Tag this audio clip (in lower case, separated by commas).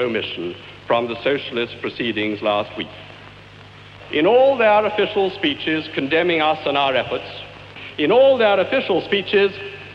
speech, narration, male speech